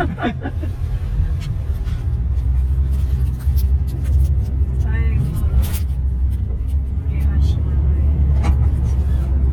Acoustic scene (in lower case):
car